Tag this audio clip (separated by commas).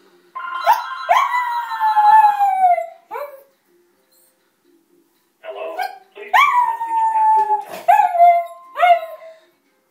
Animal, Domestic animals, Whimper (dog), Dog, Speech